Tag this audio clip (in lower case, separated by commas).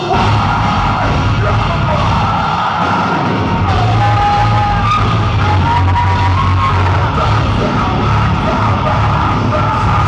music